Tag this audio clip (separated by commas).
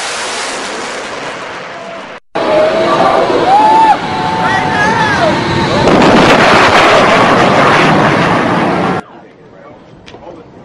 airplane flyby